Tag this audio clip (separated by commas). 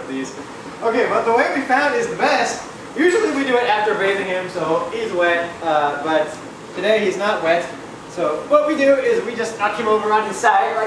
Speech